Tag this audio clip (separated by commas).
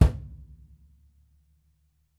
Percussion, Music, Bass drum, Drum, Musical instrument